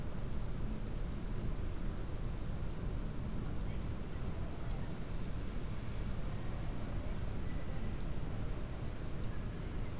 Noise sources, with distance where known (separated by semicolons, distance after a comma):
unidentified human voice, far